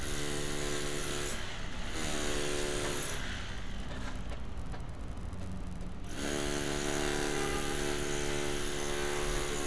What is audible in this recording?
unidentified powered saw